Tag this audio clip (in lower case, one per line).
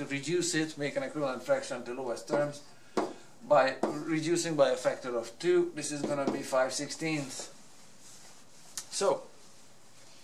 speech